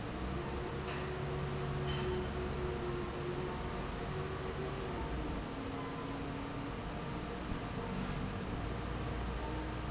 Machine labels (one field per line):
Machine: fan